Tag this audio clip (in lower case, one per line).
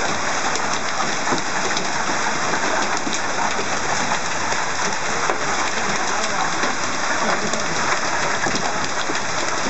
hail